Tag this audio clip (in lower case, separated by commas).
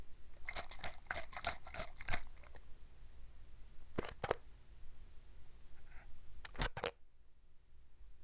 liquid